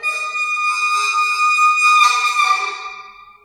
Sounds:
Squeak

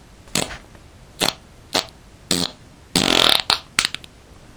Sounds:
Fart

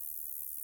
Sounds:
Animal, Insect, Wild animals, Buzz

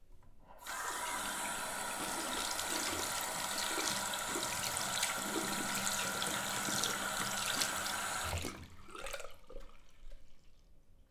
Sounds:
home sounds, Water tap

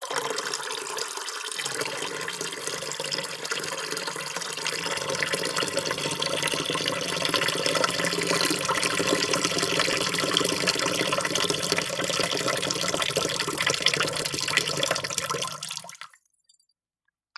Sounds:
Liquid

